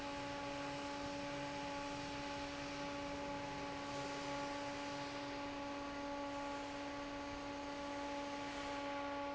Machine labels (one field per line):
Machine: fan